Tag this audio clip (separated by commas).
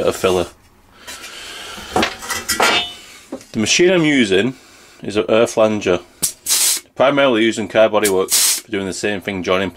Speech, Tools